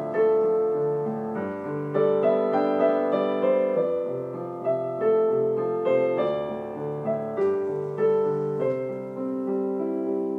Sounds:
music, theme music

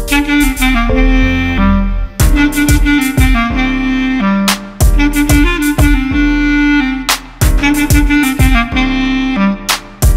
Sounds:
playing saxophone, saxophone, music

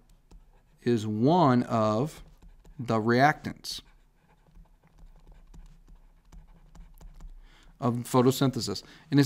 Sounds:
clicking, speech

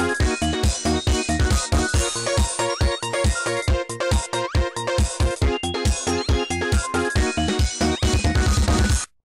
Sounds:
music

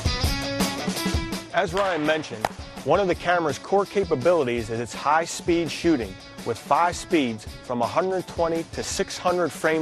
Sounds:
speech, music

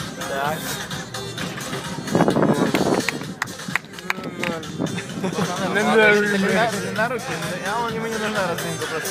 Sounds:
speech, music

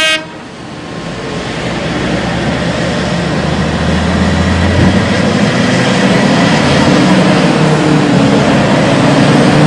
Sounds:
vehicle, outside, rural or natural, toot

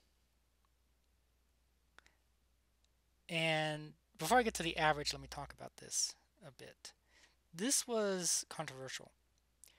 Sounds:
speech

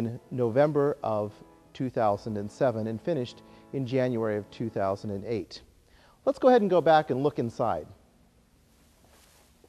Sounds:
speech

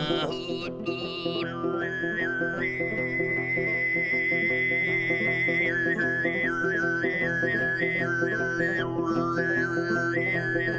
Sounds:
singing, music

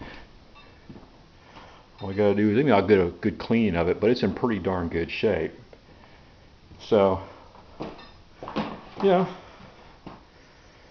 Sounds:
speech

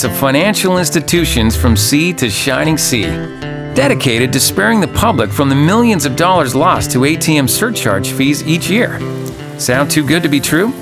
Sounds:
speech, music

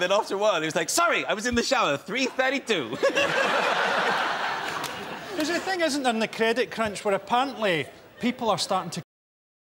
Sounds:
speech

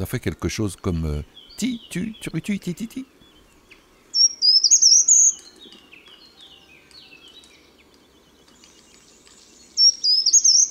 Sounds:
mynah bird singing

